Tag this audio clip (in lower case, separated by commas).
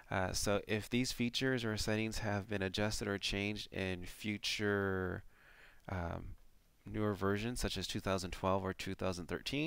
speech